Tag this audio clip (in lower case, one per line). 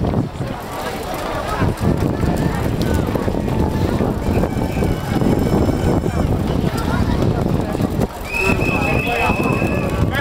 outside, urban or man-made
run
speech